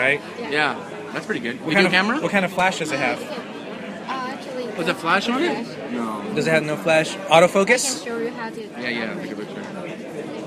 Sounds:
Speech

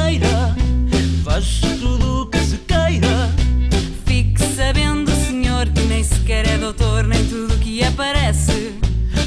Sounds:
Pop music, Music, Jazz

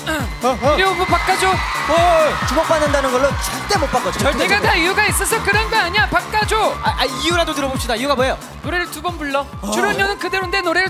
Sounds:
Music, Speech

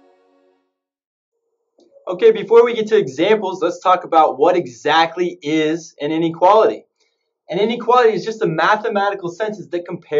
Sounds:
Speech

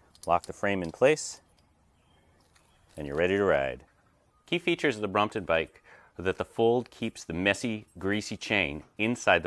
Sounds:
Speech

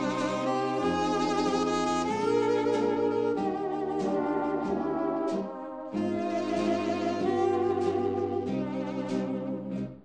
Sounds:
Music, Bowed string instrument

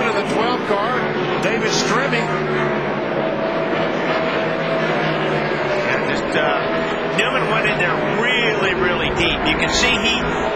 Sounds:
Speech

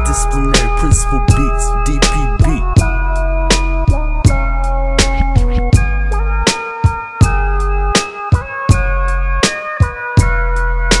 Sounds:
Music

